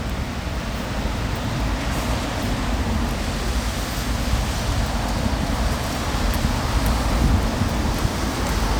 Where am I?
on a street